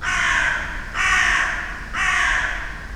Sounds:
animal, crow, wild animals, bird

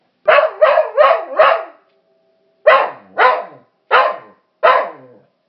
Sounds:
animal, bark, domestic animals, dog

